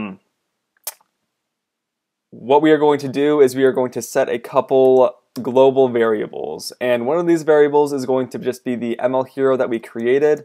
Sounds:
Speech

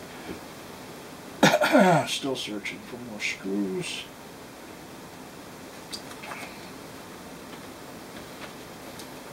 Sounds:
inside a small room, Speech

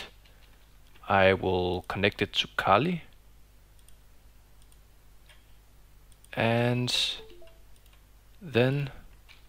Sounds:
Speech

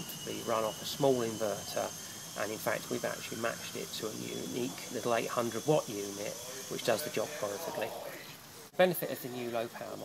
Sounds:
Speech

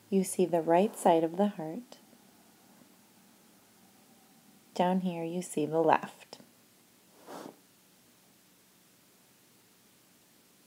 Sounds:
Speech

